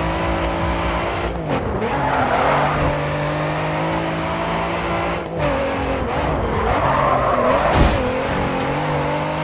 Car racing and squealing his tires